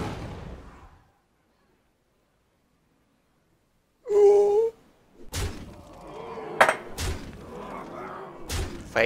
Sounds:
inside a small room, Speech

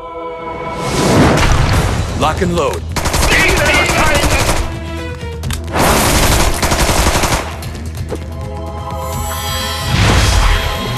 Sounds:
Machine gun

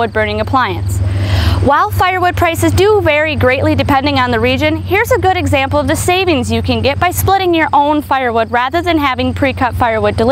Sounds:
Speech

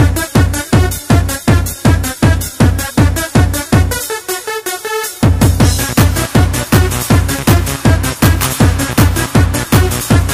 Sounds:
Music

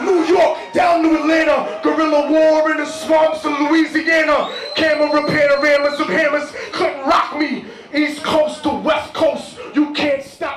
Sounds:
Speech

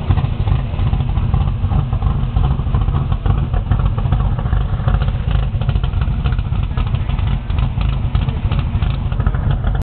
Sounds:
Vehicle

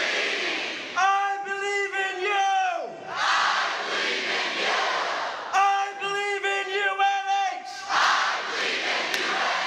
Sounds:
Speech

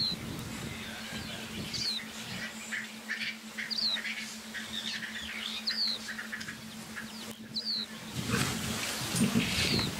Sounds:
Animal, Wild animals

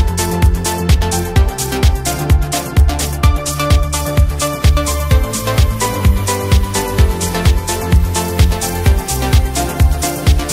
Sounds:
Music

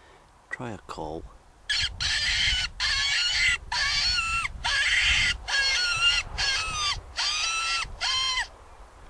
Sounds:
Animal, Speech

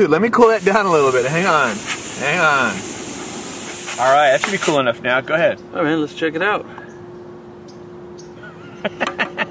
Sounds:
Speech

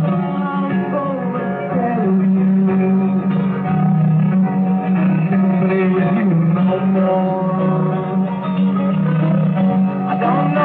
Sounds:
Music

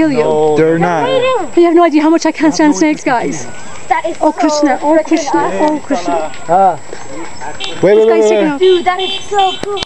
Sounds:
Speech, outside, urban or man-made

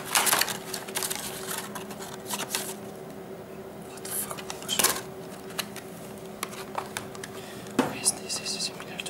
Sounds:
Speech

